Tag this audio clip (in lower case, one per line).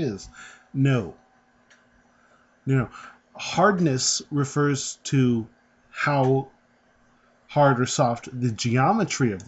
speech